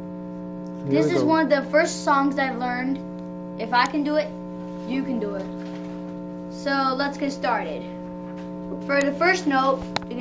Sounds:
Speech

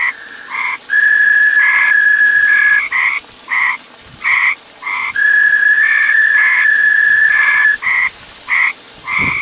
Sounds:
frog croaking

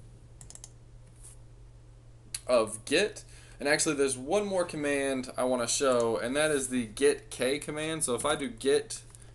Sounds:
Typing, Computer keyboard, Speech

